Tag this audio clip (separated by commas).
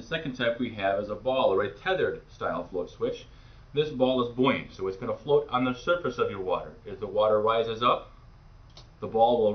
Speech